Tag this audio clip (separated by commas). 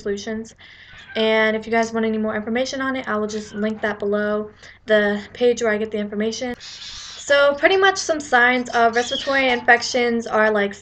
Speech